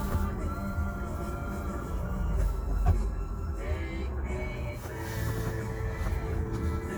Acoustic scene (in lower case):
car